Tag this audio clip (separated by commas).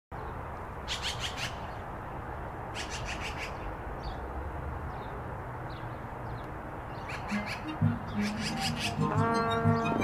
magpie calling